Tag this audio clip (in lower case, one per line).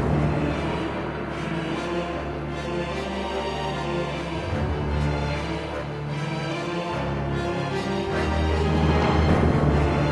music